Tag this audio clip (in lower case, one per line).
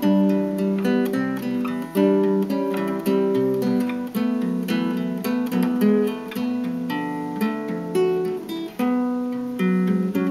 plucked string instrument
music
strum
guitar
musical instrument
acoustic guitar